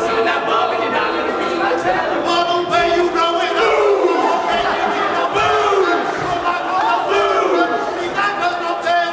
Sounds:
choir
singing
inside a large room or hall

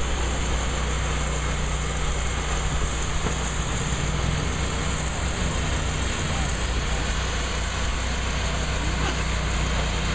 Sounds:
outside, urban or man-made
wood

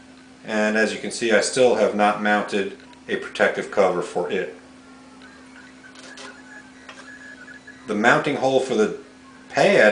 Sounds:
speech
inside a small room

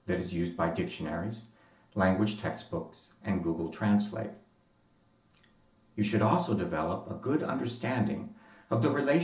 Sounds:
speech
male speech
monologue

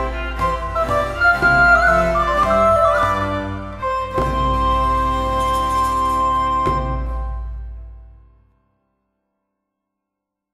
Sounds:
inside a large room or hall
music

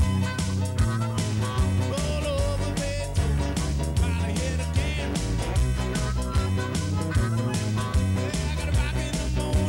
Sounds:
blues
roll
music

